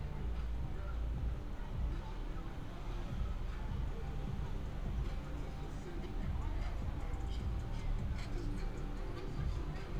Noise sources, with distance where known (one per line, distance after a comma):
music from a moving source, near